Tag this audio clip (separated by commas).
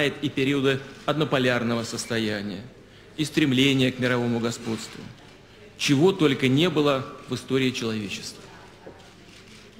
Narration, Speech